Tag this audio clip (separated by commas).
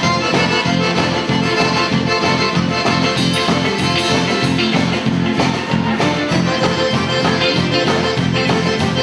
Music